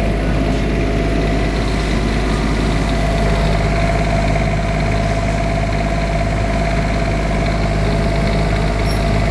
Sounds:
Idling, Medium engine (mid frequency), Engine

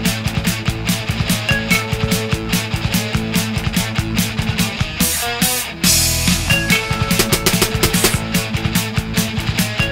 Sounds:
Music

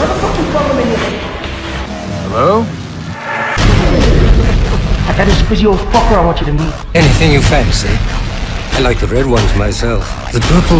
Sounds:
Electronic music, Dubstep, Speech, Music

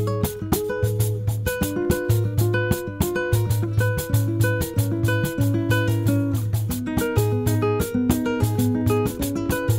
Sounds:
Music

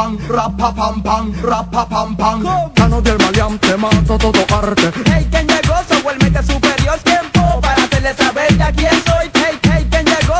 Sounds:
Music

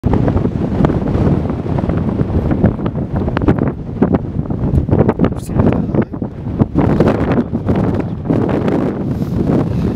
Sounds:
Speech, Wind noise (microphone), wind noise

